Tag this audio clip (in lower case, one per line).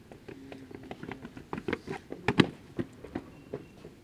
run